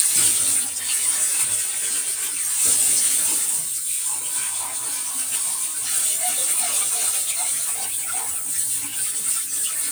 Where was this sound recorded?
in a kitchen